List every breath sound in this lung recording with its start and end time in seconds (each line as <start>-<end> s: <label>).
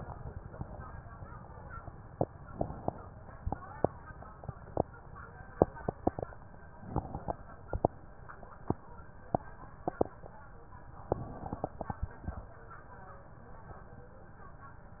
2.43-3.17 s: inhalation
2.43-3.17 s: crackles
6.76-7.51 s: inhalation
6.76-7.51 s: crackles
10.99-12.54 s: inhalation
10.99-12.54 s: crackles